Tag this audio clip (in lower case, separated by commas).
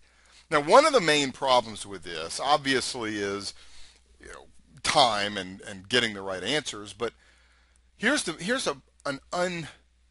speech